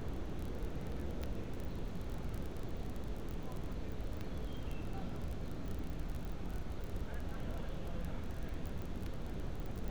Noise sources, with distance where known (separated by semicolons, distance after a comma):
unidentified human voice